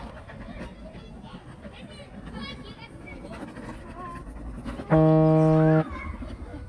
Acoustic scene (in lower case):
park